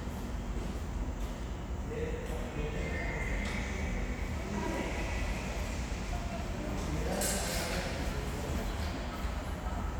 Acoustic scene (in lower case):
subway station